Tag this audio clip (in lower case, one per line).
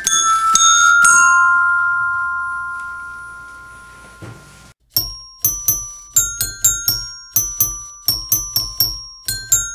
music
glockenspiel